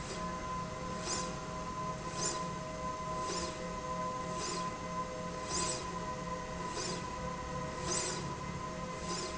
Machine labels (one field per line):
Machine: slide rail